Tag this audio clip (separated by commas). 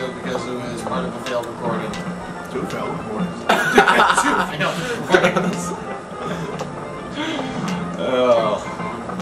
Speech